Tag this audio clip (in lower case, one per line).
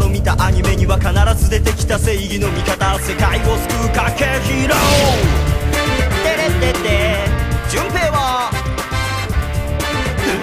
music
male singing